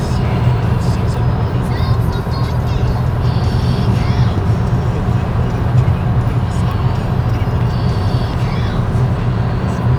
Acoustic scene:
car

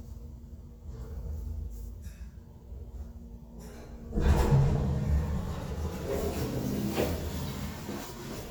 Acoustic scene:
elevator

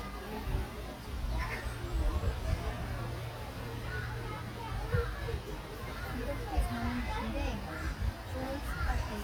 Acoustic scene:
park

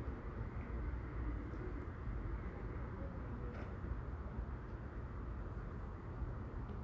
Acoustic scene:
residential area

